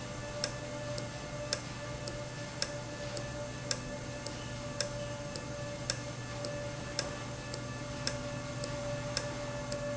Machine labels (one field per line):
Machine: valve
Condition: normal